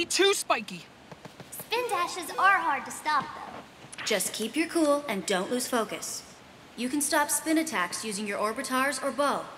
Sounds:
speech

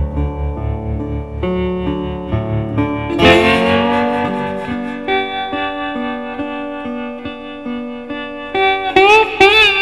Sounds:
tapping (guitar technique), music

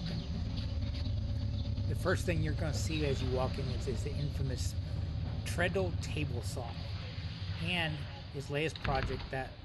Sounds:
inside a large room or hall, speech

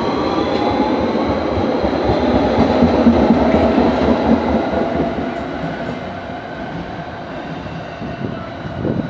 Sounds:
metro

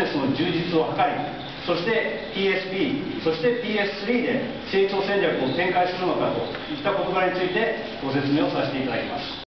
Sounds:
male speech, monologue, speech

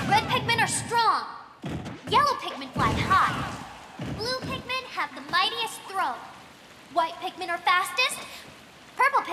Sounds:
speech

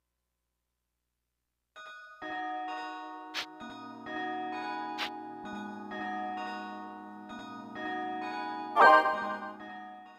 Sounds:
music, silence

